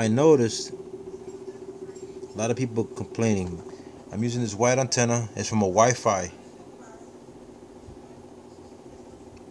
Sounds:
speech

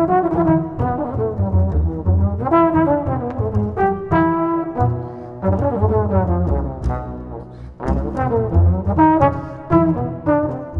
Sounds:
brass instrument, trombone, playing trombone

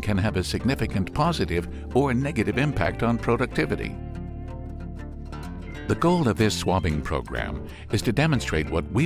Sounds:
speech, music

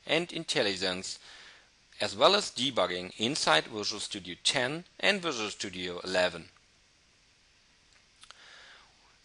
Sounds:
speech

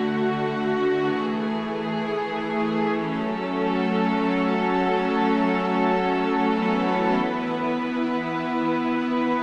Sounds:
background music, music

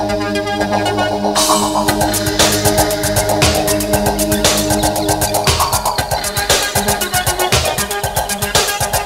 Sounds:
sound effect, music

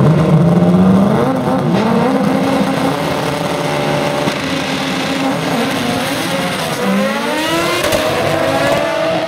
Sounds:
car, auto racing, vehicle

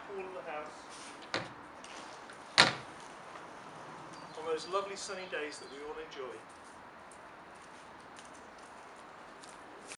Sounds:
speech

